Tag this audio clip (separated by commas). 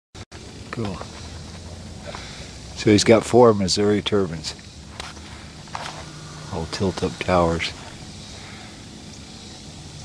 Wind, Speech